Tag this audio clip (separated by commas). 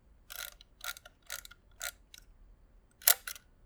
Camera, Mechanisms